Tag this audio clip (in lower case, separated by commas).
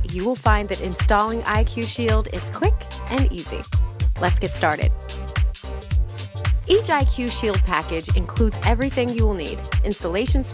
music, speech